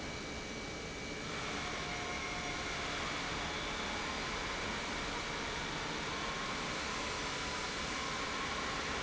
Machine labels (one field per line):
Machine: pump